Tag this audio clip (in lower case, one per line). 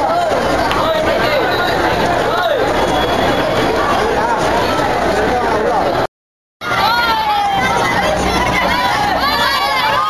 speech